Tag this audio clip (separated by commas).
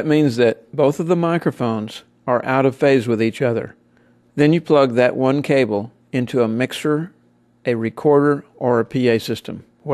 Speech